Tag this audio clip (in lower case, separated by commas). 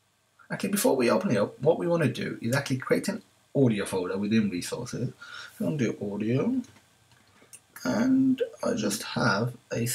speech